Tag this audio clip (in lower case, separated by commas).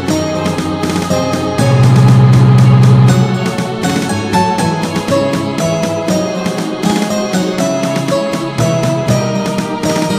video game music, music